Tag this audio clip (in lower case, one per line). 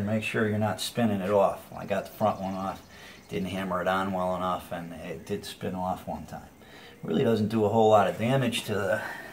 speech